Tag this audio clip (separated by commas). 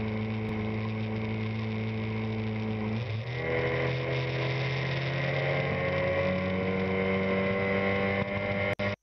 Vehicle, Motorboat